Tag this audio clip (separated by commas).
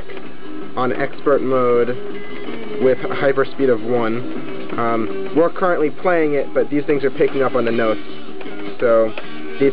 Music, Speech